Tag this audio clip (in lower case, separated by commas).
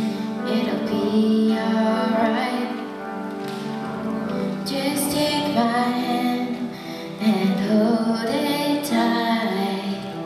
female singing, music